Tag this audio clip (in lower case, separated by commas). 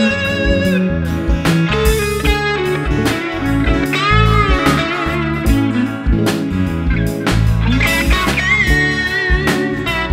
music, steel guitar, musical instrument